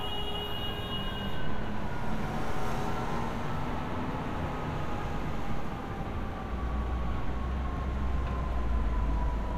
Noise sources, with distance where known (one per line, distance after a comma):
car horn, near
siren